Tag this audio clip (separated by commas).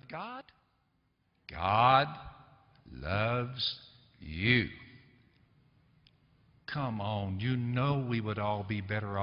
Speech